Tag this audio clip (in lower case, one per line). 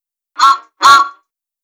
truck
motor vehicle (road)
vehicle